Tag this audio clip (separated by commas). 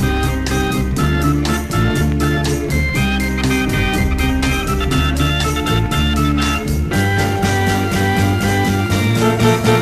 Music